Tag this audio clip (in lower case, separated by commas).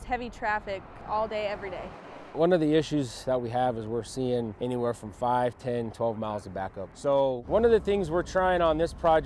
speech